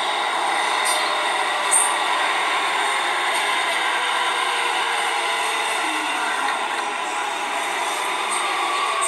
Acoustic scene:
subway train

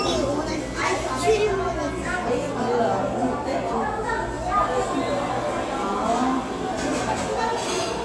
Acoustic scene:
cafe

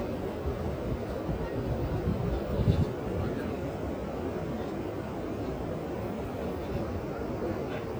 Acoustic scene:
park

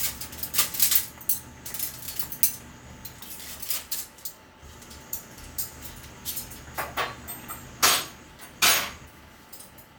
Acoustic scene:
kitchen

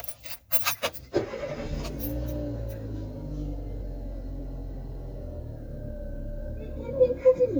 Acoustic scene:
car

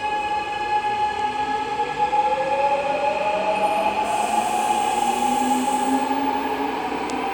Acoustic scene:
subway station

